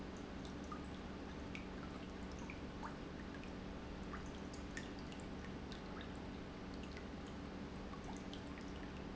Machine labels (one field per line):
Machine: pump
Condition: normal